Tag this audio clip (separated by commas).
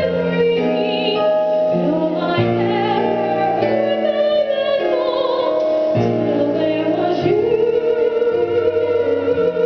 Female singing, Music